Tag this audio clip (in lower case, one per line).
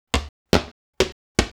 walk